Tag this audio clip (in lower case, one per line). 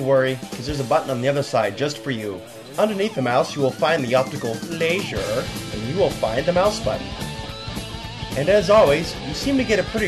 music
speech